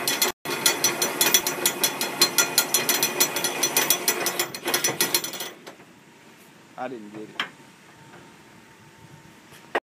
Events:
0.0s-9.8s: mechanisms
0.4s-5.6s: pawl
6.8s-7.5s: male speech

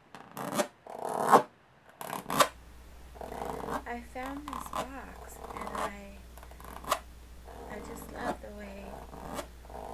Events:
0.0s-9.9s: background noise
0.1s-0.2s: tap
0.3s-0.7s: scratch
0.9s-1.4s: scratch
1.8s-2.0s: tap
2.0s-2.5s: scratch
3.2s-3.8s: scratch
3.8s-6.2s: female speech
4.3s-4.8s: scratch
5.1s-5.9s: scratch
6.3s-7.0s: scratch
7.5s-8.3s: scratch
7.7s-9.0s: female speech
8.6s-9.5s: scratch
9.7s-9.9s: scratch

